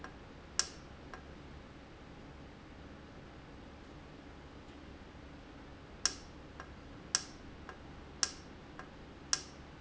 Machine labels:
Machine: valve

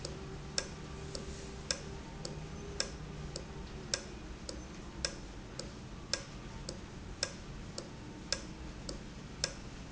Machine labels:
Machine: valve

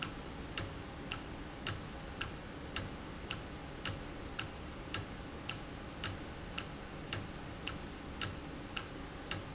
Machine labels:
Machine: valve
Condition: normal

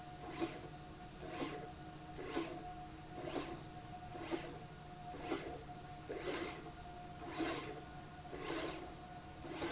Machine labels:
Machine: slide rail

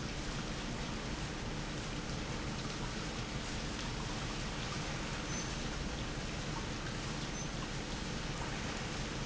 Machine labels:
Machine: pump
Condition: normal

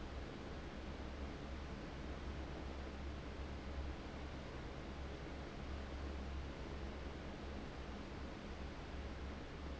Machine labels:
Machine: fan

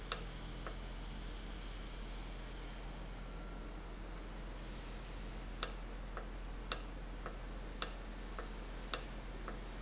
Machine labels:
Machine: valve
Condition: normal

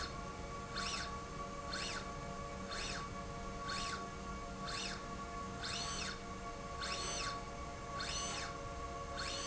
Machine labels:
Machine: slide rail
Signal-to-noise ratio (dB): 0 dB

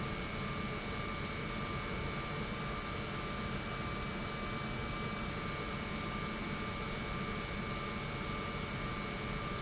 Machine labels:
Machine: pump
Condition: normal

